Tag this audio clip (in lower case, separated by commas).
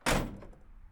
vehicle, truck, slam, motor vehicle (road), door, domestic sounds